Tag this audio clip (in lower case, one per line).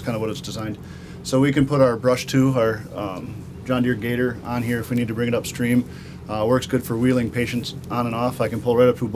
speech